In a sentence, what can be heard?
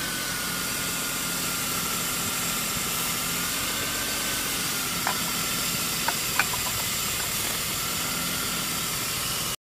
A water or paint spray that is electronically or industrially controlled and emitting at a steady flow rate